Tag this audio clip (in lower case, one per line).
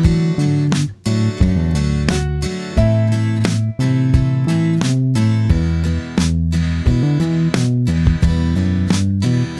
music